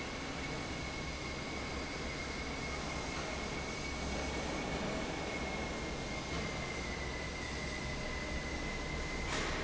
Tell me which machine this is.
fan